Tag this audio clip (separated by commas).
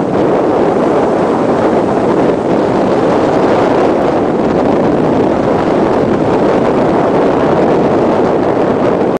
Vehicle